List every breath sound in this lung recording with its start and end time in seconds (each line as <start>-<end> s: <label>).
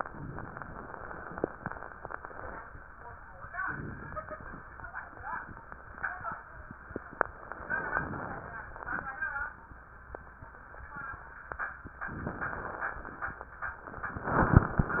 3.61-4.65 s: inhalation
12.14-13.26 s: inhalation